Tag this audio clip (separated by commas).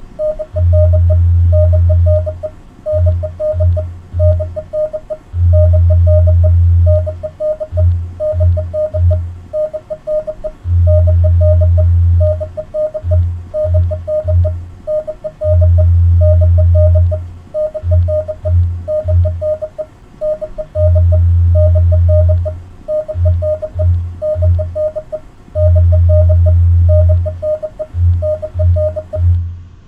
Telephone, Alarm